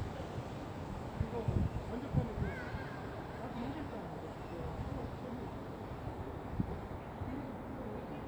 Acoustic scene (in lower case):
park